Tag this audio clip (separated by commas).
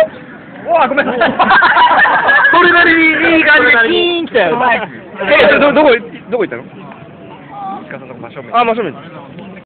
Speech